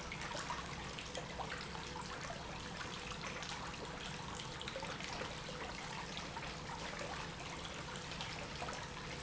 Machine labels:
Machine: pump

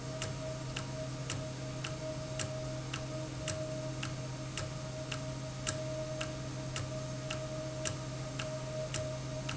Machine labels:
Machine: valve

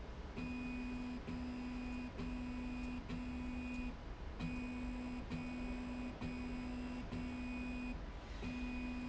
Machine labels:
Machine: slide rail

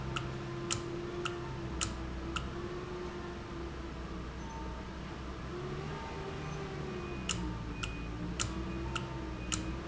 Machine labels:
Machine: valve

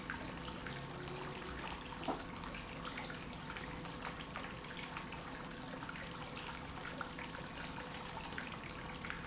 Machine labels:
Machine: pump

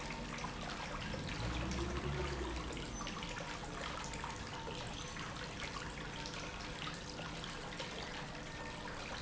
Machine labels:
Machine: pump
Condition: normal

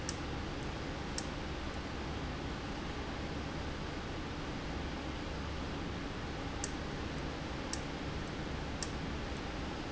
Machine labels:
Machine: valve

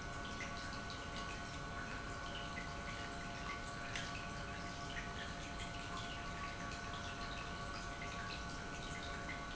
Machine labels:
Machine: pump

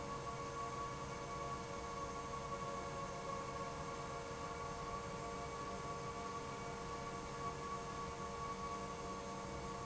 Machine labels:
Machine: pump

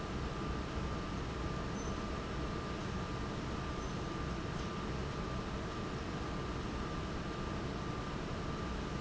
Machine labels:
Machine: fan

